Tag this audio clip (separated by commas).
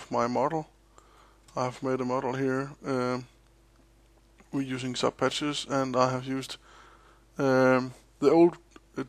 Speech